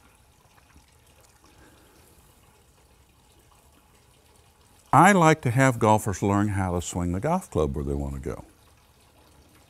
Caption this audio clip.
A sink fills with water, and then a person talks a moderate volume